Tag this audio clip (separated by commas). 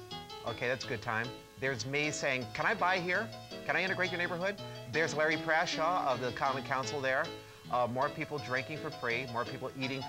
Speech, Music